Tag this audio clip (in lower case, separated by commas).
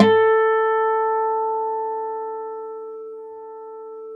music, acoustic guitar, plucked string instrument, musical instrument, guitar